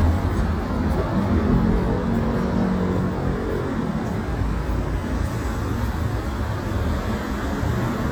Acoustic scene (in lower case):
street